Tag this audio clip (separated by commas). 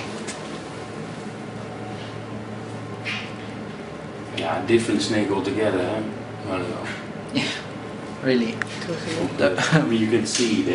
Speech